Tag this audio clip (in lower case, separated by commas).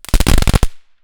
fireworks, explosion